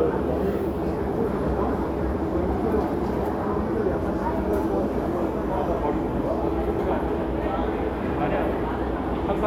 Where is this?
in a crowded indoor space